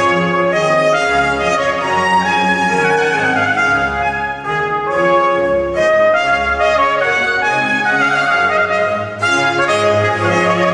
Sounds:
bowed string instrument
trumpet
music
musical instrument
violin
brass instrument
orchestra

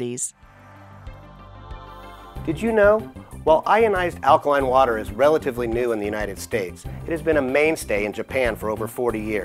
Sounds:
speech
music

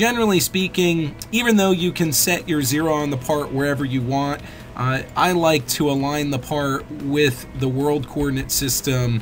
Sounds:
music
speech

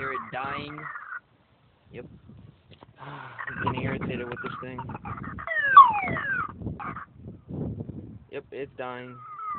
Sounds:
siren
speech

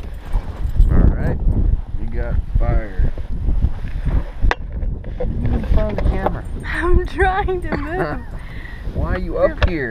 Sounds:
speech
sailboat

